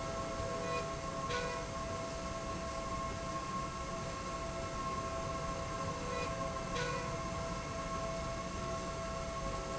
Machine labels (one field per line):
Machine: slide rail